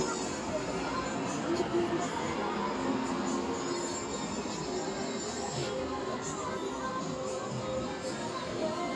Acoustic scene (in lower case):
street